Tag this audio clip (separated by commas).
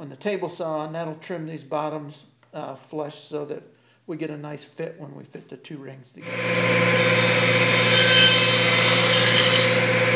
Speech, Tools